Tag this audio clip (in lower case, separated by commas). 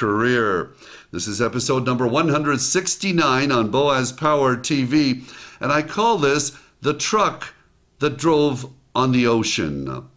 speech